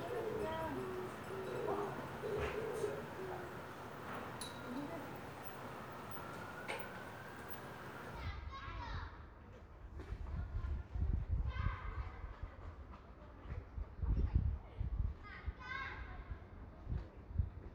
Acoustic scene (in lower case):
residential area